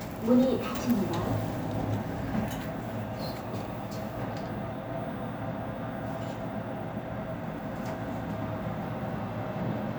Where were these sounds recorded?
in an elevator